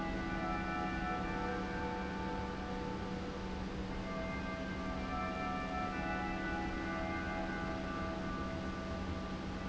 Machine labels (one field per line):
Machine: pump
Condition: normal